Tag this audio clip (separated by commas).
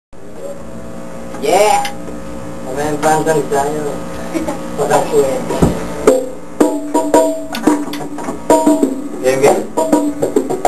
Percussion, Drum, Snare drum